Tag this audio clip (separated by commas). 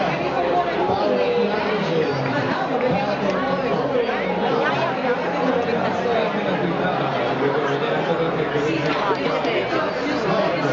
Speech